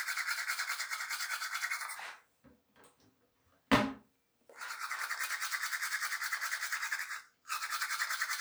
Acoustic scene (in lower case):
restroom